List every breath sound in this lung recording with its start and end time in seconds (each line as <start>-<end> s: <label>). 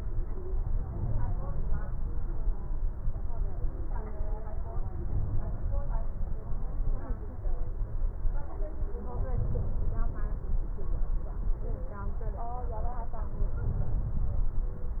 9.00-10.50 s: inhalation
13.37-14.56 s: inhalation